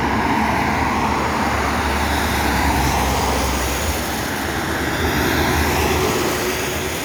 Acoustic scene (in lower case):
street